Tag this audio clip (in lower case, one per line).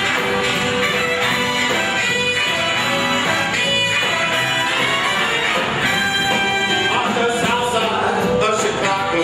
orchestra
music